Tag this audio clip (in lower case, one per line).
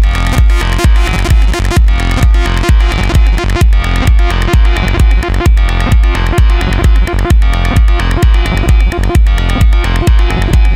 drum machine
music